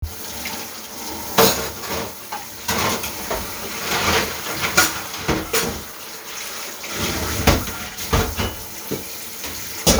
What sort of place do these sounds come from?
kitchen